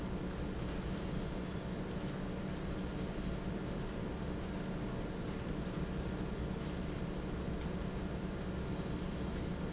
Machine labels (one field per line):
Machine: fan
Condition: normal